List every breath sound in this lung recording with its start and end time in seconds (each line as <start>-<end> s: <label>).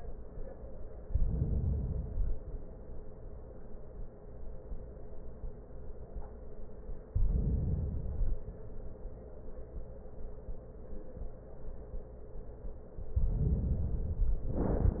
0.99-2.12 s: inhalation
2.10-3.33 s: exhalation
7.11-8.05 s: inhalation
8.08-9.18 s: exhalation
13.22-14.41 s: inhalation